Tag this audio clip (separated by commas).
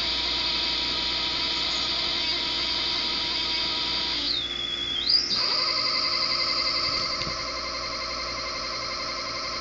inside a small room